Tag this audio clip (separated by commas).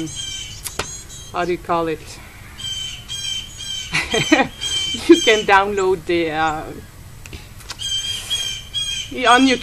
Speech, Squawk, outside, rural or natural, Bird